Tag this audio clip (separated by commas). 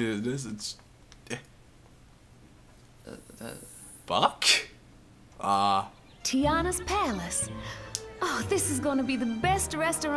Music, Speech